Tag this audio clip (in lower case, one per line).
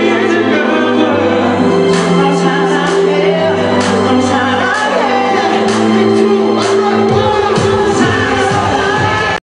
music